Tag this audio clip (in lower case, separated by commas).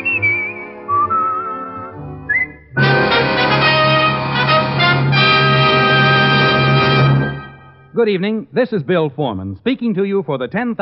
radio, music, speech